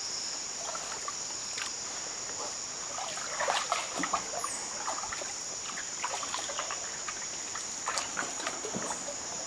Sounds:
Boat

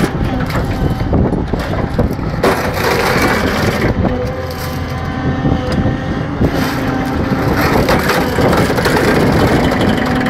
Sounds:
Vehicle

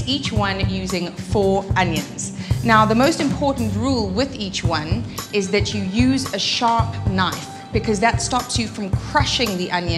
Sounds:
Speech, Music

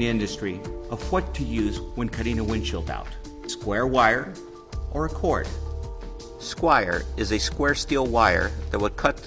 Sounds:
Music, Speech

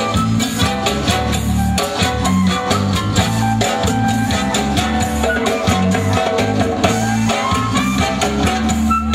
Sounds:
Music, Musical instrument

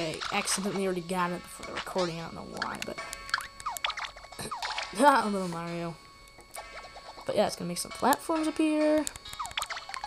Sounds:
Music, Speech

